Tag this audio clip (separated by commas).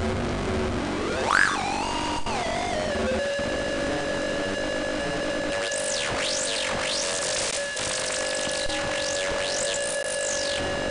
Cacophony